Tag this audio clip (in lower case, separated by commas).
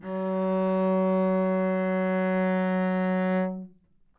music, musical instrument, bowed string instrument